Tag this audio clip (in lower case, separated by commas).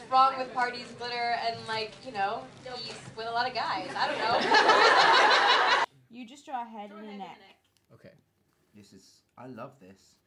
speech, laughter